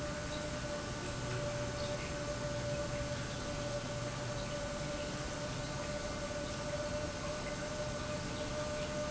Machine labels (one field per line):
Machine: pump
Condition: normal